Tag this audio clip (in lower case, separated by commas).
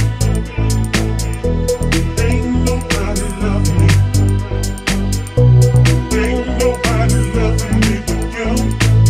music